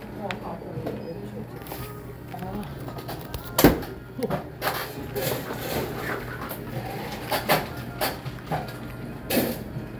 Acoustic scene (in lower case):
cafe